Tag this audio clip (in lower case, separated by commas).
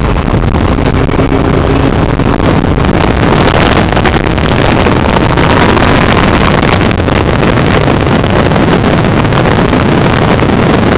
car, motor vehicle (road), vehicle